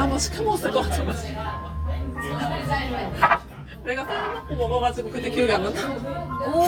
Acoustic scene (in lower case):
crowded indoor space